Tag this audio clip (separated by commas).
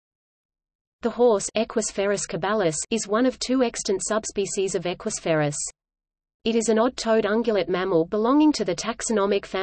horse neighing